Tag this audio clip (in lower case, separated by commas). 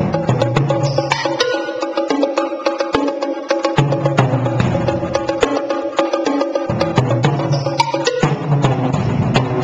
music